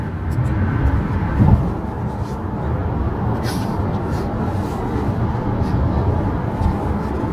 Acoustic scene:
car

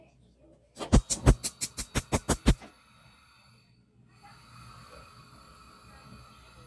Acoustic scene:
kitchen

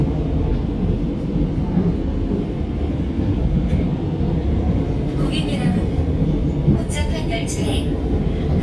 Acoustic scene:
subway train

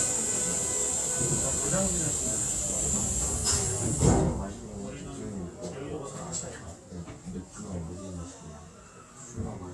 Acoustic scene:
subway train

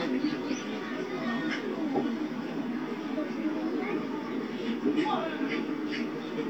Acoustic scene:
park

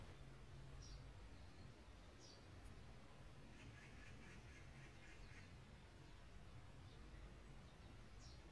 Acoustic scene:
park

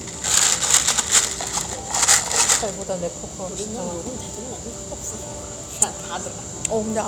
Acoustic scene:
cafe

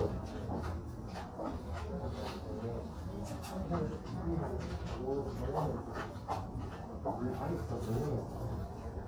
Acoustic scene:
crowded indoor space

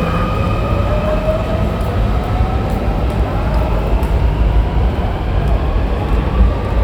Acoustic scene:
subway station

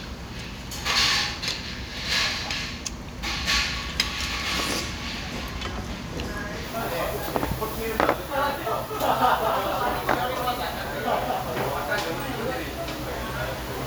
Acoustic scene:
restaurant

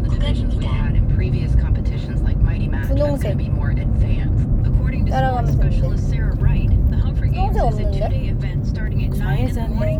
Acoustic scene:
car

